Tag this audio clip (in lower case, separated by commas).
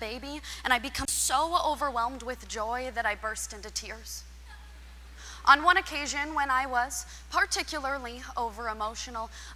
speech